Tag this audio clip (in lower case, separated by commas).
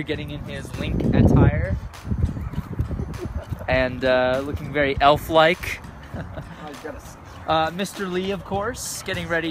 music, speech